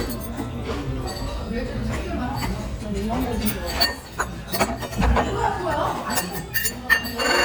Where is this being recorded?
in a restaurant